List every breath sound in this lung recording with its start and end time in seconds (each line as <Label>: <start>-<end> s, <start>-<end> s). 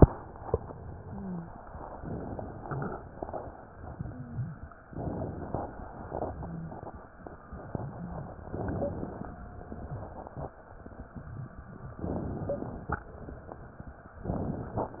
Inhalation: 1.97-2.96 s, 4.92-5.90 s, 8.52-9.51 s, 12.01-13.00 s
Wheeze: 1.01-1.44 s, 6.36-6.79 s, 8.71-8.99 s, 12.45-12.73 s